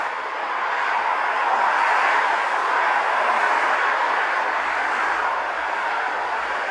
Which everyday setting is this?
street